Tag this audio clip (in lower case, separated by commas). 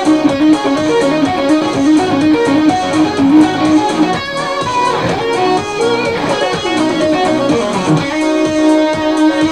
electric guitar, strum, musical instrument, music, plucked string instrument, guitar, playing electric guitar